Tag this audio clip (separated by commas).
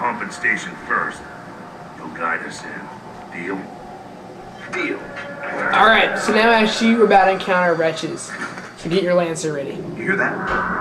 Speech